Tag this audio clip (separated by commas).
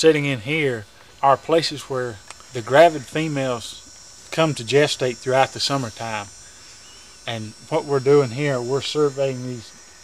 outside, rural or natural, Speech